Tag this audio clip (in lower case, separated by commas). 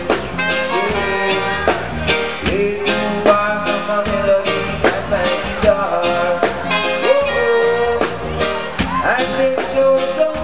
music